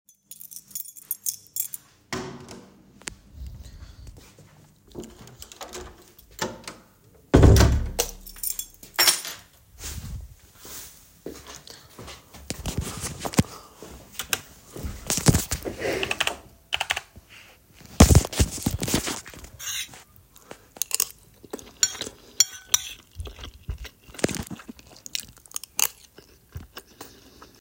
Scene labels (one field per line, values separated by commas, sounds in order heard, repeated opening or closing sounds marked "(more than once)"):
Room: bedroom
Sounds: keys, door, footsteps, keyboard typing, cutlery and dishes